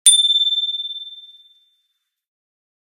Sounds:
vehicle, bicycle, bicycle bell, bell, alarm

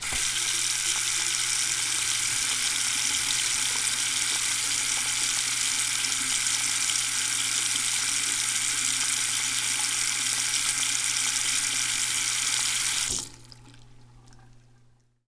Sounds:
sink (filling or washing), faucet, home sounds

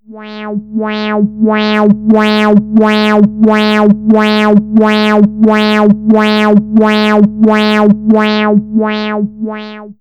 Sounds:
alarm

